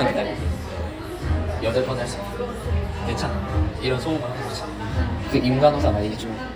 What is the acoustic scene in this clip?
cafe